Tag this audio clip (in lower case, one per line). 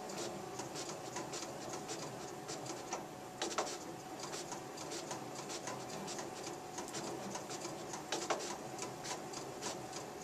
printer